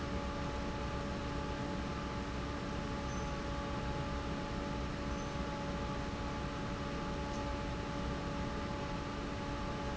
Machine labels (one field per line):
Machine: fan